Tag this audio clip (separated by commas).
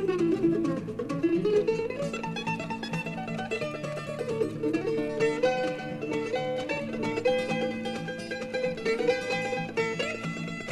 Music, Mandolin